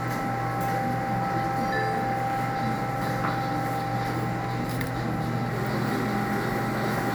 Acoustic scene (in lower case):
cafe